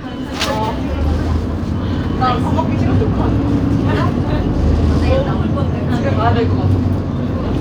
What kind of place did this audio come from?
bus